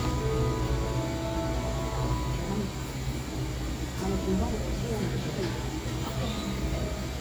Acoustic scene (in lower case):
cafe